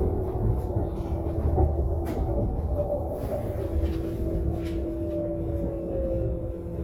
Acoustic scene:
bus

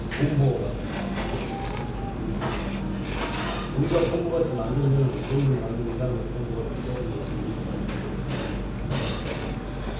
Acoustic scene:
restaurant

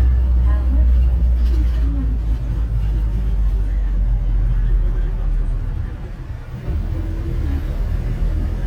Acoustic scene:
bus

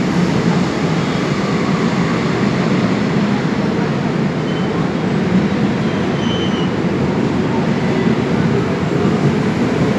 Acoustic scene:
subway station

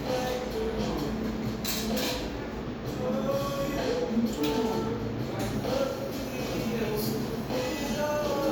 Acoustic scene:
cafe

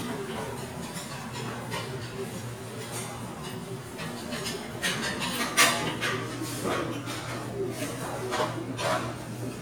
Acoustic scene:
restaurant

